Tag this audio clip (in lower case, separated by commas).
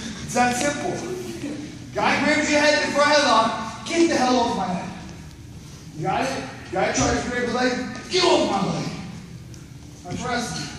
speech